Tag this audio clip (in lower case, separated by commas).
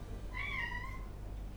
animal, meow, domestic animals, cat